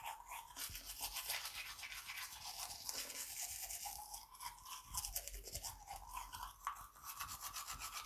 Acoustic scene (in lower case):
restroom